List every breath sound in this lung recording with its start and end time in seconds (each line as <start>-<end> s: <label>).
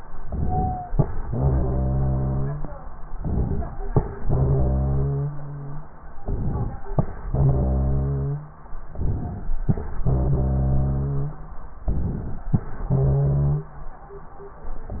0.21-0.84 s: inhalation
0.41-0.84 s: wheeze
1.28-2.54 s: exhalation
1.28-2.67 s: wheeze
3.13-3.75 s: inhalation
4.31-5.60 s: exhalation
4.31-5.81 s: wheeze
6.21-6.84 s: inhalation
7.28-8.48 s: exhalation
7.28-8.48 s: wheeze
8.91-9.54 s: inhalation
10.10-11.42 s: exhalation
10.10-11.42 s: wheeze
11.86-12.49 s: inhalation
12.86-13.76 s: exhalation
12.86-13.76 s: wheeze